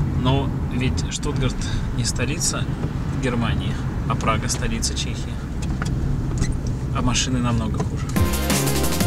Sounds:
speech, music

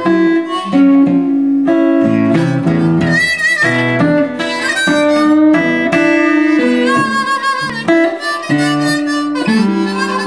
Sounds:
acoustic guitar, plucked string instrument, harmonica, guitar, musical instrument, strum, playing acoustic guitar, music

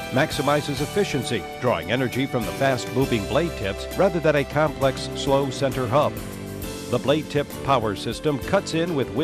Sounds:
music, speech

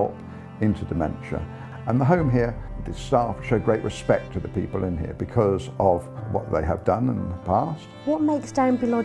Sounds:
speech, music

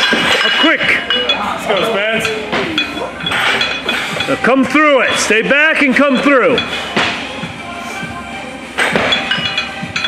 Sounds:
music, speech

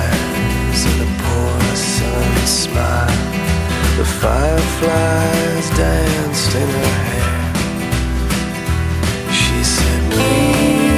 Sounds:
music

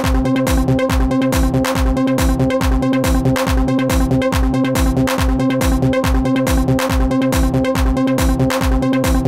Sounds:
music, trance music, electronic dance music, electronic music, dubstep, techno, electronica

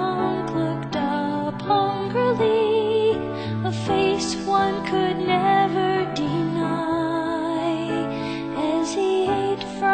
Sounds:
music

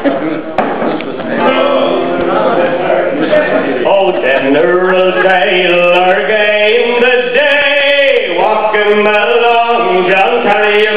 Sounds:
speech, music

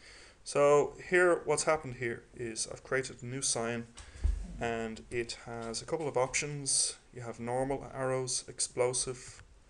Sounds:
speech

